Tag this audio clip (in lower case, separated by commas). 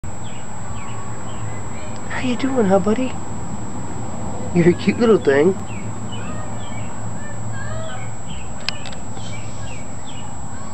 bird